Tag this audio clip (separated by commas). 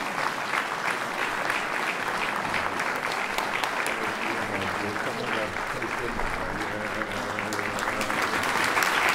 singing choir